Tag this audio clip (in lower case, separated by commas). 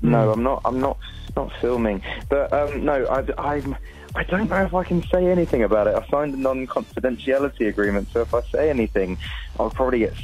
speech, music